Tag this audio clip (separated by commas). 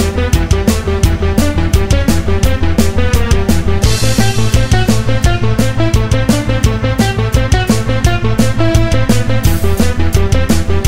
Music, Theme music